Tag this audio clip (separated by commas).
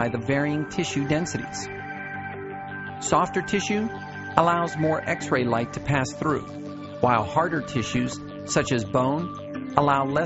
Music, Speech